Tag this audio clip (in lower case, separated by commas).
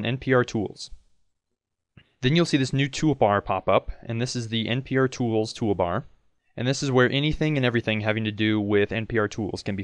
speech